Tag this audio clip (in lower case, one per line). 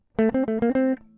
plucked string instrument
guitar
music
musical instrument